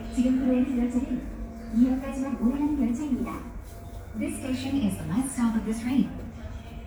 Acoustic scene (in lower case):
subway station